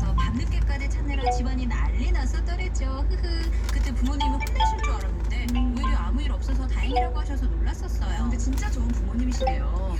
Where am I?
in a car